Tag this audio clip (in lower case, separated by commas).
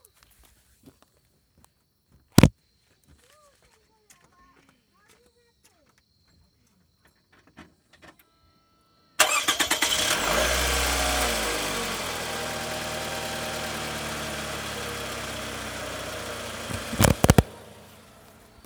engine starting, engine